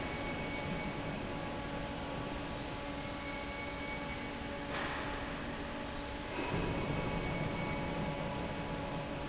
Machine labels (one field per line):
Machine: fan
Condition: normal